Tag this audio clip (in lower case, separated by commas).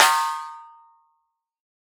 snare drum, music, drum, percussion, musical instrument